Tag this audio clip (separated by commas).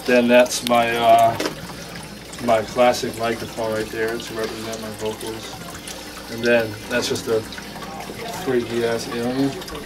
Speech, Music, Pour